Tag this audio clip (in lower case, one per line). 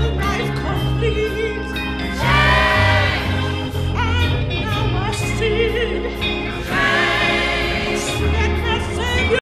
music